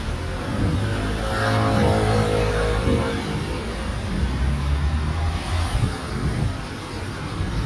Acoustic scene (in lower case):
residential area